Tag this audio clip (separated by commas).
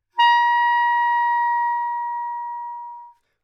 Musical instrument, woodwind instrument, Music